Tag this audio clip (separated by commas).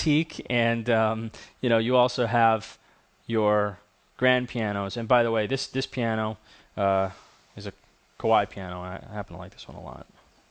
Speech